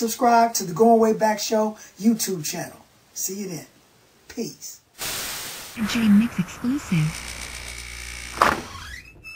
A man speaks and a door opens